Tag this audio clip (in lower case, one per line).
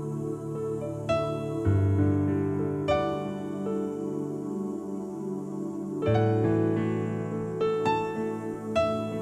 music